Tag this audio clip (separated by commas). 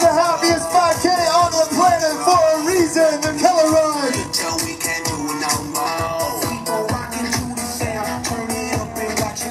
Music, Speech